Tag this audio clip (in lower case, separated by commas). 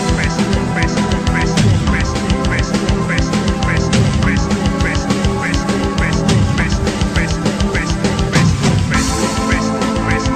middle eastern music, music